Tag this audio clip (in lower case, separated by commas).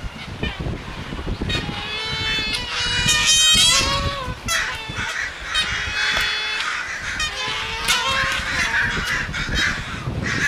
goose, fowl, honk